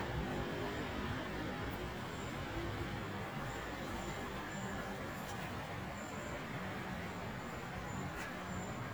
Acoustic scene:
residential area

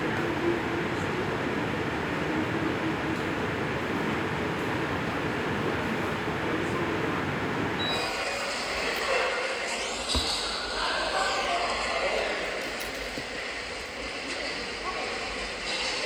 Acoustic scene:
subway station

